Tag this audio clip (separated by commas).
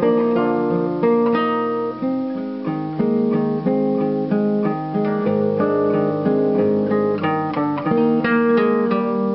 Strum, Music, Bass guitar, Plucked string instrument, Musical instrument, Guitar, Acoustic guitar